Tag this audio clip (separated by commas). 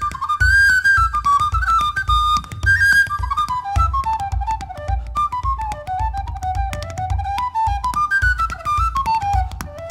Music